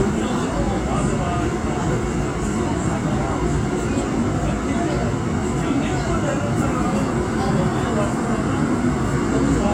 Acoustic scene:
subway train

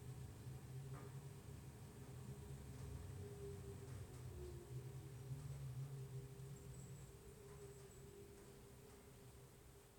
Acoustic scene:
elevator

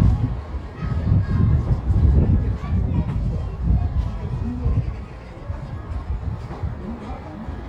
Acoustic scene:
residential area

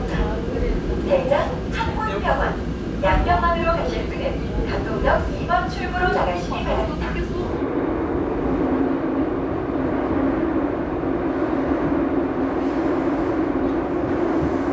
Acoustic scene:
subway train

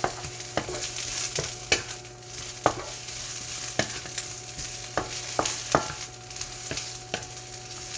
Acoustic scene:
kitchen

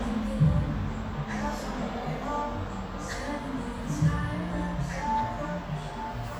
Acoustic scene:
cafe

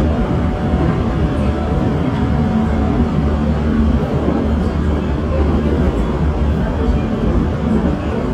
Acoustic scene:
subway train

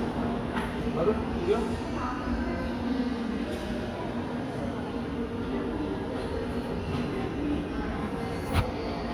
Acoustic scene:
cafe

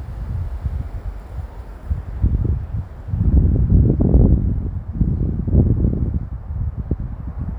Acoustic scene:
residential area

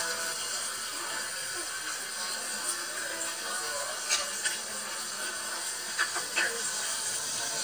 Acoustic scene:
restaurant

